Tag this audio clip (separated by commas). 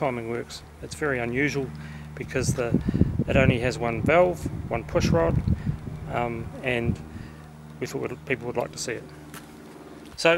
Speech